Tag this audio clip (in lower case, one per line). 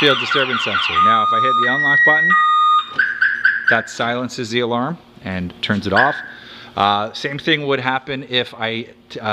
car alarm